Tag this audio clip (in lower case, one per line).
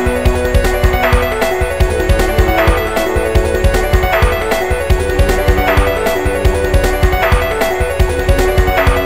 music